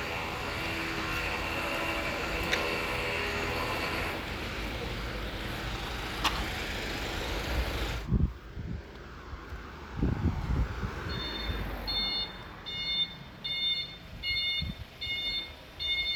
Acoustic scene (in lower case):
residential area